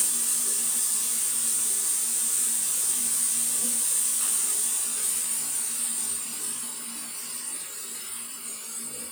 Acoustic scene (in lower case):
restroom